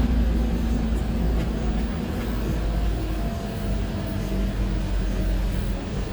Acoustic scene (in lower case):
bus